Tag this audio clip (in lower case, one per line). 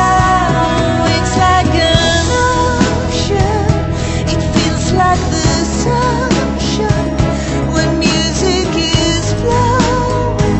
music
singing